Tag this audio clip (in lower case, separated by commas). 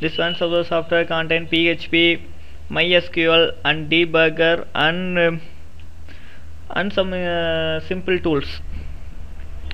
speech